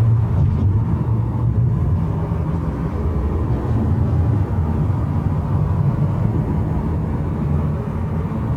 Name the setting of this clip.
car